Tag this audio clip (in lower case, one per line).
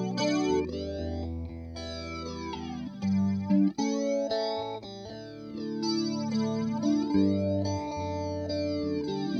musical instrument
music
effects unit
guitar